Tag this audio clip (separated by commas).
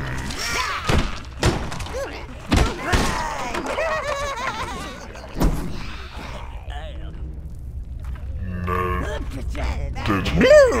Speech, Thump